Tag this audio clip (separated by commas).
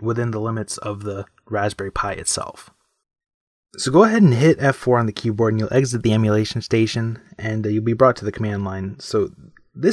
inside a small room, Speech